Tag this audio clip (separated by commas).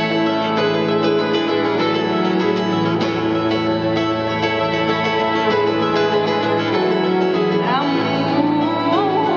Music, Classical music, Singing